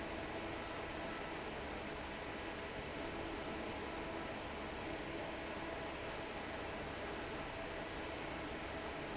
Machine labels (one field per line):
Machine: fan